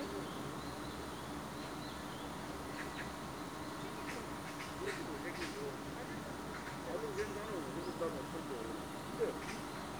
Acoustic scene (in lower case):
park